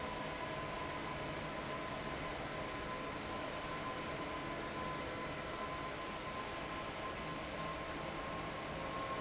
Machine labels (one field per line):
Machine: fan